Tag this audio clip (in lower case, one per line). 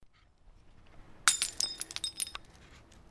shatter
glass
crushing